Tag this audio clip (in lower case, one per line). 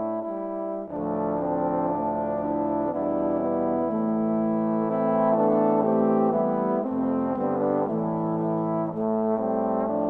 playing trombone